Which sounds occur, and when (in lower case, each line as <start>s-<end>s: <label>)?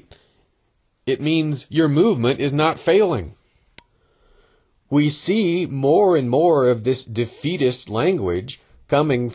0.0s-0.5s: breathing
0.0s-9.3s: background noise
1.1s-3.3s: man speaking
3.7s-3.9s: generic impact sounds
3.8s-4.8s: breathing
4.9s-9.3s: man speaking
8.5s-8.8s: breathing